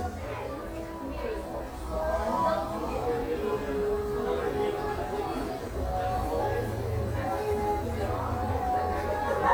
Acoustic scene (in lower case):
cafe